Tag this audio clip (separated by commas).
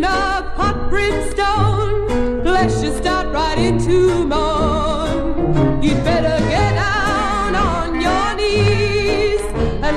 Music